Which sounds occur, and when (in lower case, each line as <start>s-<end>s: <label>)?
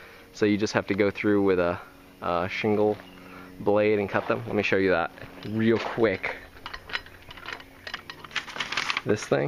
0.0s-9.4s: mechanisms
0.0s-9.4s: wind
0.3s-1.7s: man speaking
1.7s-1.9s: breathing
2.2s-2.9s: man speaking
3.0s-3.5s: bird song
3.2s-3.5s: breathing
3.5s-5.1s: man speaking
4.1s-4.3s: generic impact sounds
5.1s-5.3s: generic impact sounds
5.3s-6.4s: man speaking
5.4s-5.5s: generic impact sounds
5.4s-5.5s: bird song
5.7s-5.9s: generic impact sounds
6.1s-6.3s: bird song
6.6s-7.0s: generic impact sounds
7.1s-7.3s: bird song
7.3s-7.6s: generic impact sounds
7.6s-8.0s: bird song
7.8s-9.4s: generic impact sounds